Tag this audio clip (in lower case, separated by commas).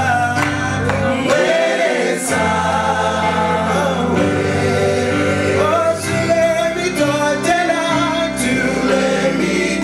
singing, vocal music, music